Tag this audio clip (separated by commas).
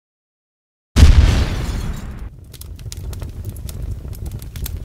pop, Explosion